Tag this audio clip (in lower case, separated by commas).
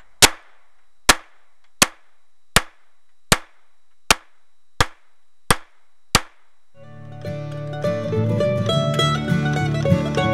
music, mandolin, outside, rural or natural